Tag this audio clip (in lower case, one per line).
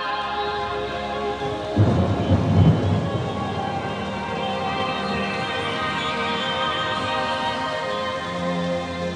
music
rain on surface